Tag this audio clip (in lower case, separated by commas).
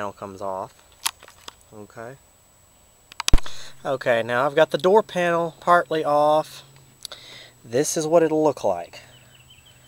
speech